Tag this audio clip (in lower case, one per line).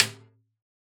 music
musical instrument
drum
percussion
snare drum